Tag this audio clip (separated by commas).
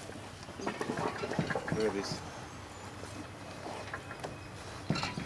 Speech